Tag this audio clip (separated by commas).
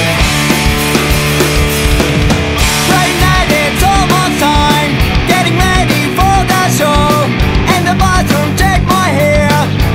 Music